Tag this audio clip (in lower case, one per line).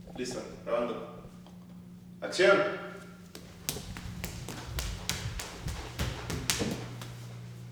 run